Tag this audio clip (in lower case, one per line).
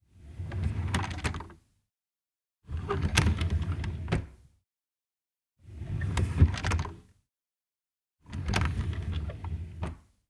home sounds
drawer open or close